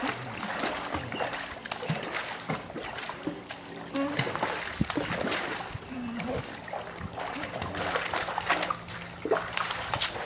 Water is splashing and a dog whimpers